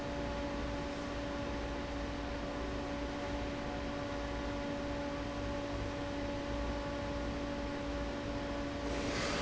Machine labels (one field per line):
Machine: fan